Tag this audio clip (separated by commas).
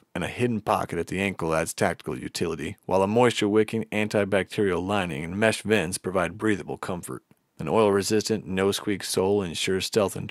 Speech